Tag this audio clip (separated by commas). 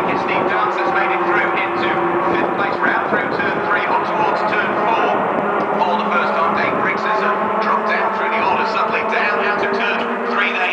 Speech, Vehicle, Car